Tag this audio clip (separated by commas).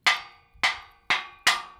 Tools